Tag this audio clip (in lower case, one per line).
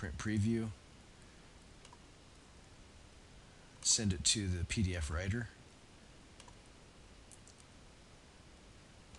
clicking
inside a small room
speech